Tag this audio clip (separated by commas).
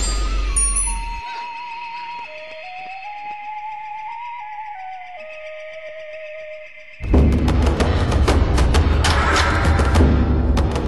Flute